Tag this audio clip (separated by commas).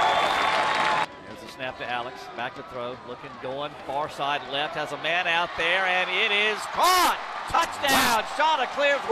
Speech